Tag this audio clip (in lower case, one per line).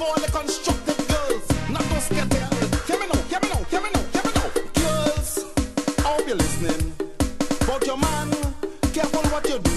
music